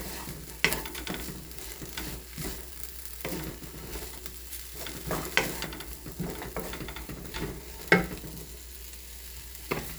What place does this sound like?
kitchen